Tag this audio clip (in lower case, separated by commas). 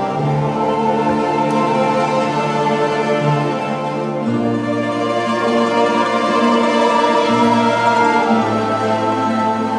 plucked string instrument, mandolin, music, musical instrument, orchestra